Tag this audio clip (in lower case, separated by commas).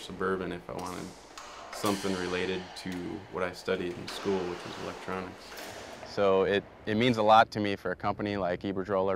speech